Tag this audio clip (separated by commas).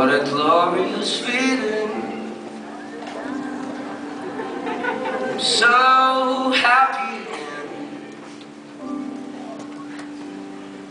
Male singing, Music